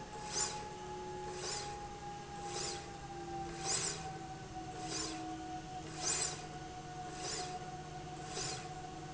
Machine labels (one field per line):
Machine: slide rail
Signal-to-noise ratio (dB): 0 dB